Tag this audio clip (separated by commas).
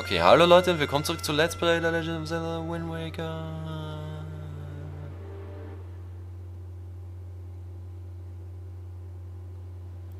Speech